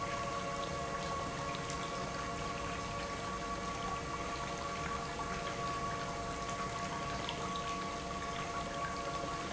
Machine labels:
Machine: pump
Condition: normal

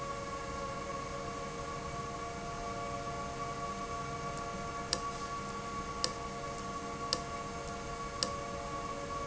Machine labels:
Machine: valve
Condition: abnormal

